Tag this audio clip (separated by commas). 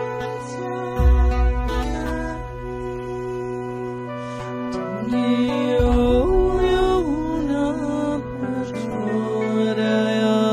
Music, Mantra